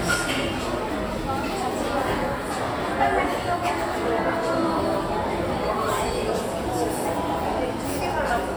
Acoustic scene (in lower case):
crowded indoor space